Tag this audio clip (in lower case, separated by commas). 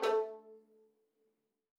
music, bowed string instrument, musical instrument